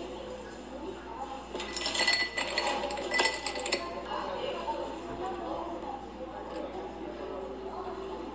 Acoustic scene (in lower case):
cafe